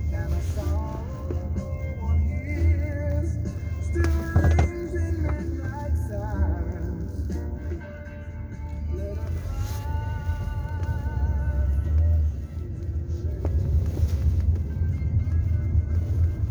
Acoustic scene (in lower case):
car